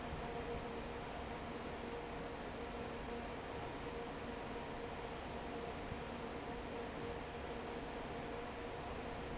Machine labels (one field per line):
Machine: fan